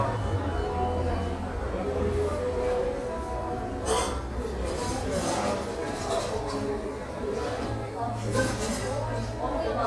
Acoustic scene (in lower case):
cafe